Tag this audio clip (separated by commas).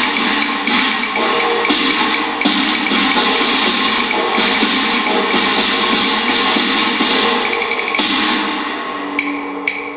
Music